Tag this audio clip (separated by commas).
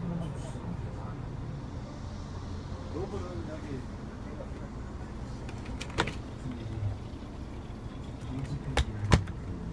Vehicle, Speech, Bus